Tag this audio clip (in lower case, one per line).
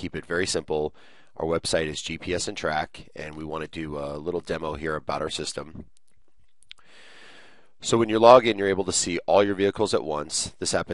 speech